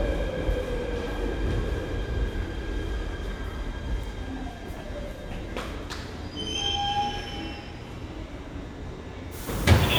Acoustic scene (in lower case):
subway station